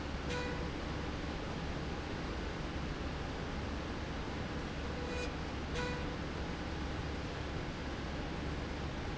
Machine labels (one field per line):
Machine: slide rail